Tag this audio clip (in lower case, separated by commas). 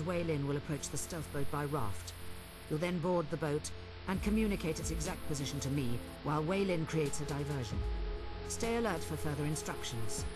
music, speech